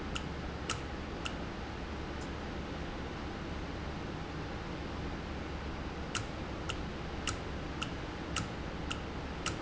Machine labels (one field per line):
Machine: valve